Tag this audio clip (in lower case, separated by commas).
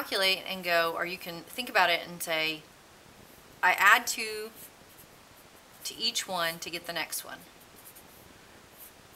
speech, writing